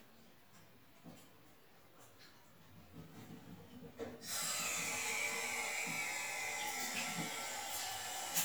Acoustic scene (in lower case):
restroom